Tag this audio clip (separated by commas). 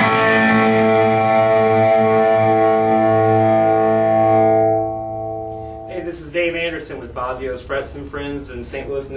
Speech, Music